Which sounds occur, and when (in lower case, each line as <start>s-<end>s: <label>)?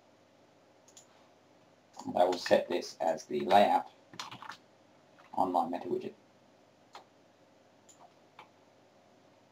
0.0s-9.5s: mechanisms
0.8s-1.0s: clicking
1.9s-2.0s: clicking
1.9s-3.9s: man speaking
2.3s-2.5s: clicking
3.0s-3.2s: clicking
3.3s-3.6s: clicking
4.1s-4.6s: generic impact sounds
5.1s-5.3s: generic impact sounds
5.3s-6.1s: man speaking
6.9s-7.0s: clicking
7.8s-8.1s: clicking
8.3s-8.5s: clicking